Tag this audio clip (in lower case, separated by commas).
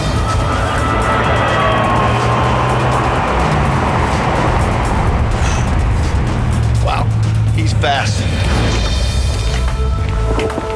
car, vehicle, auto racing, speech, music